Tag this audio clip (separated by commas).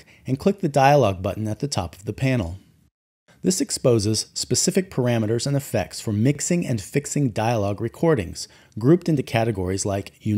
Speech